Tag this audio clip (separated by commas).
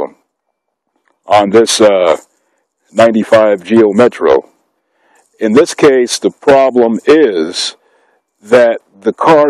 Speech